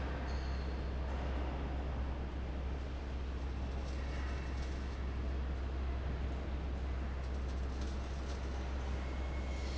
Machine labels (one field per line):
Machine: fan